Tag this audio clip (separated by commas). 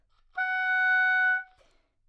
Music, Wind instrument, Musical instrument